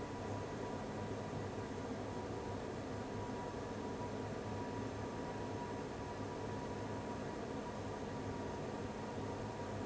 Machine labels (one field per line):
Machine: fan